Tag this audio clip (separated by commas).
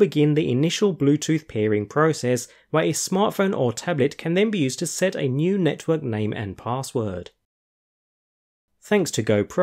Speech